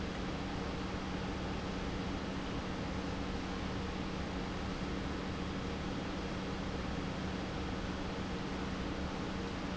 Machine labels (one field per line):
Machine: pump